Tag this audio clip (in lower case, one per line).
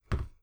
thud